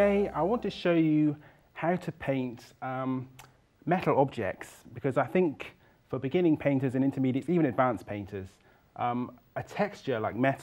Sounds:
Speech

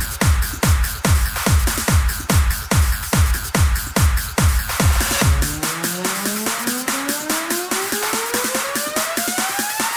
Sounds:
Music

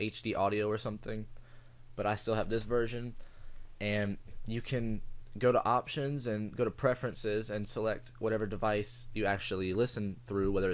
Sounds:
Speech

